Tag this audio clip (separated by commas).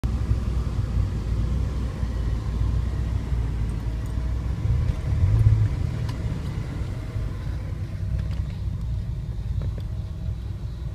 Vehicle